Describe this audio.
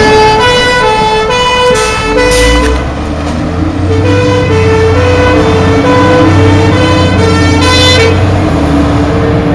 Fire truck siren with engine sounds